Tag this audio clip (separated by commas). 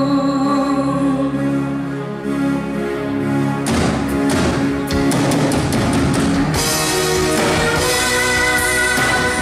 Female singing, Music